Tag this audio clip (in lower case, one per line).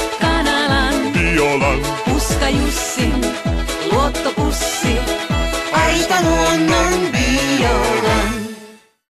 music